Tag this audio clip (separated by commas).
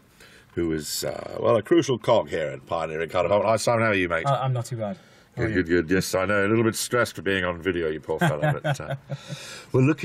Speech